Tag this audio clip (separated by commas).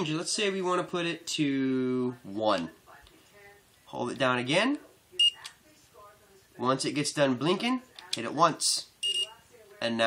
Speech, inside a small room